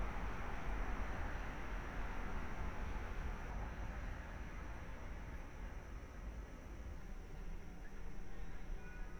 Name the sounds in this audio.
car horn